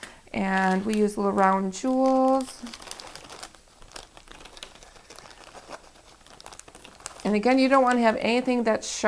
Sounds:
Speech, inside a small room

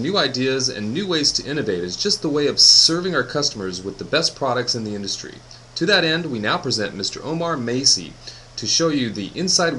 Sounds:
Speech

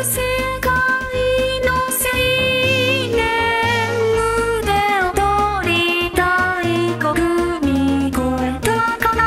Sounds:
Music

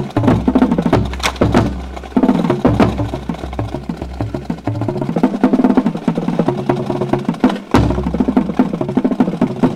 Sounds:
Drum, Percussion

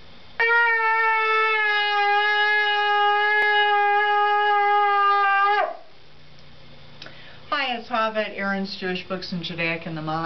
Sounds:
playing shofar

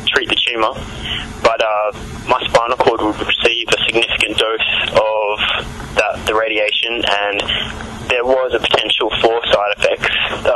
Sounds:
Speech

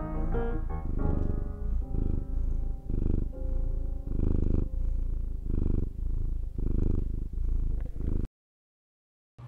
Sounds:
Cat, Speech, Purr, Music

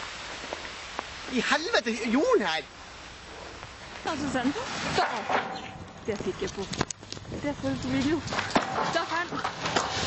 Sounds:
Speech

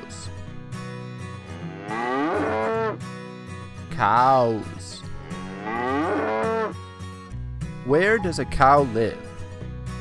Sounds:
cattle mooing

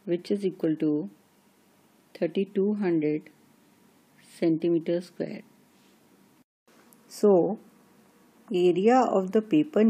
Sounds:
Speech, inside a small room

